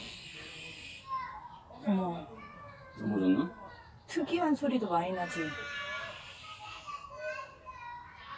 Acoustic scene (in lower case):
park